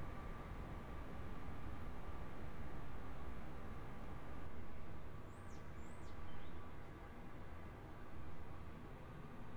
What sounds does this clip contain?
background noise